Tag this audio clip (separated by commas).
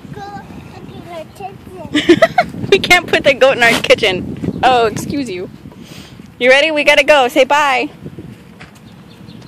Speech